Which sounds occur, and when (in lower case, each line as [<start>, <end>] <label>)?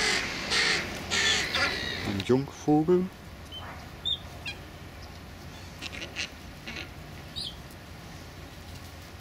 [0.00, 0.22] bird vocalization
[0.00, 9.20] wind
[0.46, 0.81] bird vocalization
[1.06, 2.44] bird vocalization
[2.03, 2.44] man speaking
[2.60, 3.12] man speaking
[3.45, 3.67] bird vocalization
[3.98, 4.20] bird vocalization
[4.42, 4.61] bird vocalization
[5.78, 6.27] bird vocalization
[6.57, 6.90] bird vocalization
[7.30, 7.59] bird vocalization